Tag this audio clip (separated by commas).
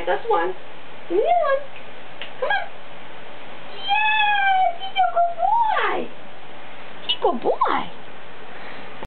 Speech